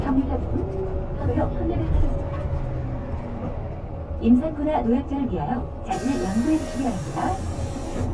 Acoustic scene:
bus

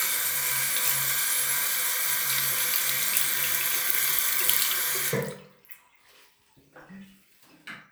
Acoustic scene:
restroom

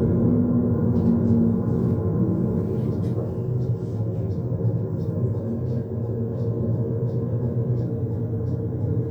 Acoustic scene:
car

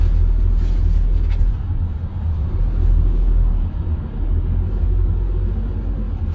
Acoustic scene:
car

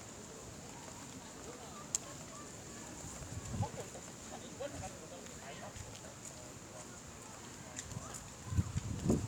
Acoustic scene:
park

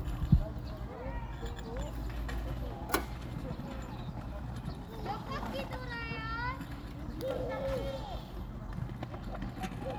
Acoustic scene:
park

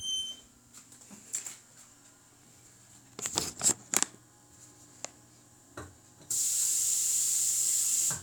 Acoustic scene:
restroom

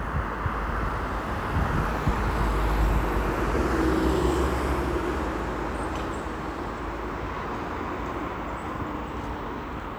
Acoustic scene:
street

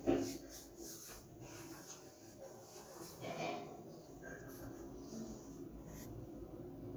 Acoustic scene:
elevator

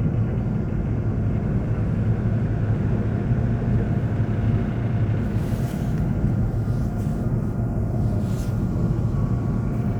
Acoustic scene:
subway train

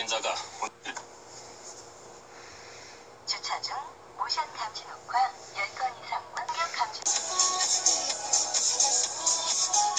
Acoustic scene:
car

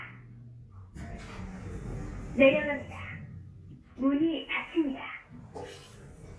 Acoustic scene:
elevator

